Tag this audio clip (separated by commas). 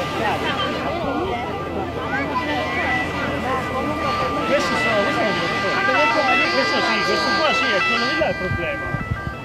Vehicle, Speech, Hubbub